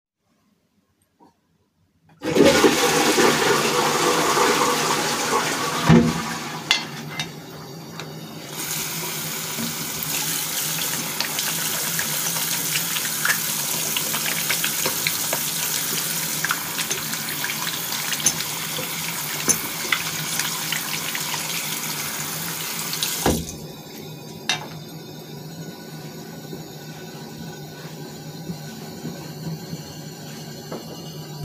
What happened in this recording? I flushed the toilet and then closed its lid. I opened a tap and started washing my hands, occasionally hiting the sink with the buckle of a belt. Afterwards, I dried my hands with a towel.